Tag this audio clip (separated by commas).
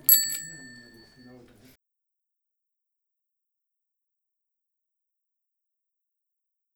Vehicle, Bicycle, Bicycle bell, Alarm, Bell